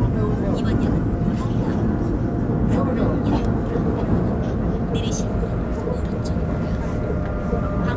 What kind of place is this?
subway train